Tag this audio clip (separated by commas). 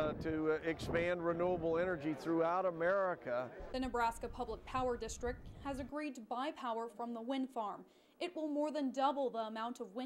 Wind, Speech